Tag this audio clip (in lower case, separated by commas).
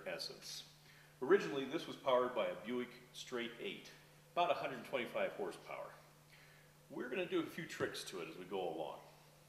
speech